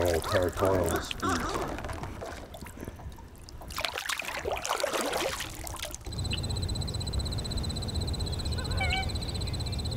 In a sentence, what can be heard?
A man says something unintelligible, followed by splashing and an animal cry